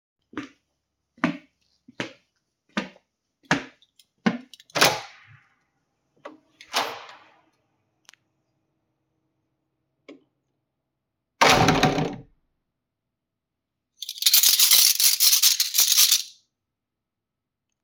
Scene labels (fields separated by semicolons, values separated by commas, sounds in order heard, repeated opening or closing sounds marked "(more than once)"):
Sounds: footsteps, door (more than once), keys